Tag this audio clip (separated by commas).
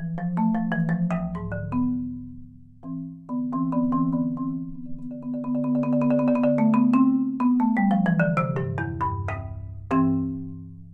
Music, Percussion, xylophone, Marimba, Musical instrument